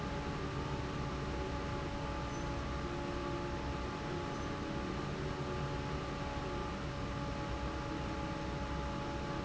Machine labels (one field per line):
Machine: fan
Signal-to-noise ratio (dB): -6 dB